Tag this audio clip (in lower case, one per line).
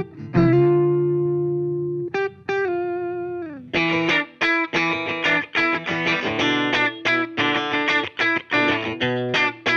music